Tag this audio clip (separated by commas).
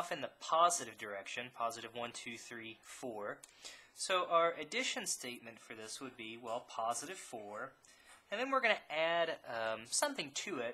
Speech